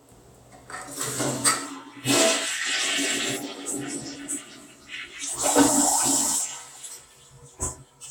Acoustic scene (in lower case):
restroom